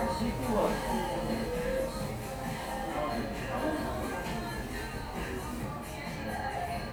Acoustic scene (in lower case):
cafe